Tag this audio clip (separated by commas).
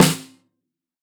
Percussion, Music, Drum, Musical instrument, Snare drum